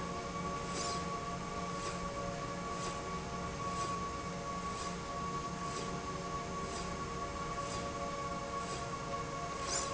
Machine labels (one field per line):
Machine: slide rail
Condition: normal